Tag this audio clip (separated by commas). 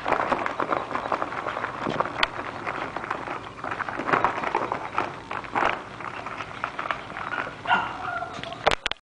Yip